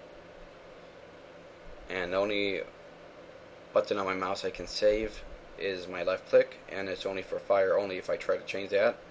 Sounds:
speech

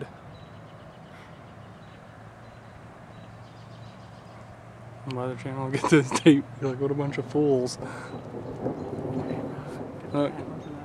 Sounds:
speech

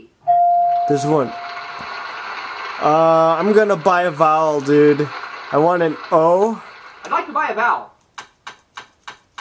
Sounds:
inside a small room, speech, music

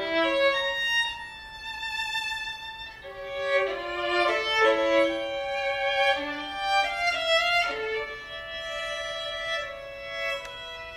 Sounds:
violin, music, musical instrument

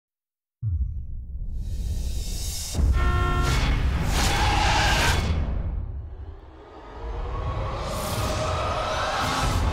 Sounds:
music

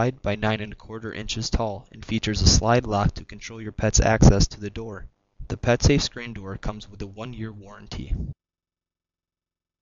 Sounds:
speech

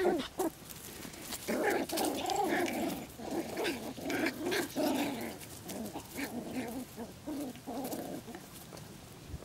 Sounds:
dog, animal, pets

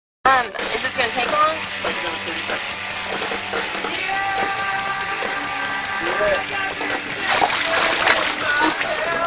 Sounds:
bathtub (filling or washing), water, speech, music

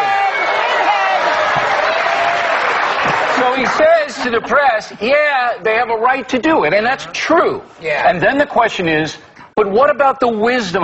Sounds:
speech

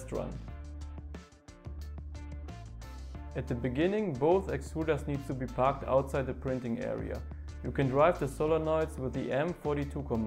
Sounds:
speech, music

